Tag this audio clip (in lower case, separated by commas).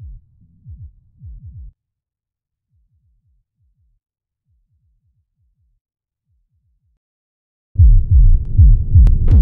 music, drum machine